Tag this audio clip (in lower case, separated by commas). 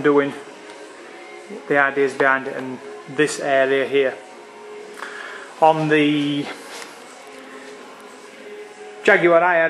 music, speech